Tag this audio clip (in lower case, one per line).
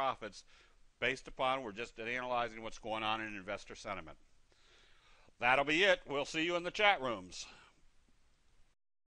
speech